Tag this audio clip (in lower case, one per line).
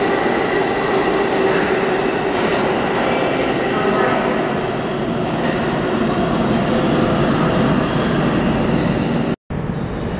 speech